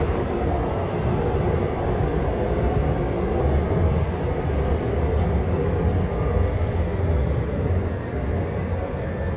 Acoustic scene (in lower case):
subway train